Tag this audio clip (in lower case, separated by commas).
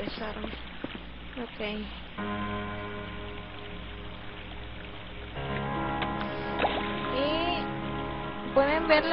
speech, music